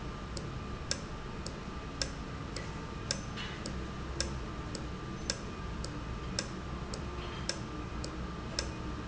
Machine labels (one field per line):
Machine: valve